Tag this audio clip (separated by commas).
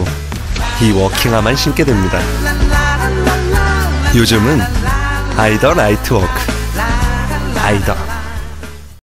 footsteps, Speech, Music